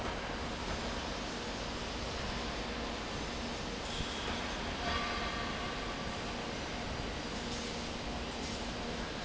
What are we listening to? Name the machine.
fan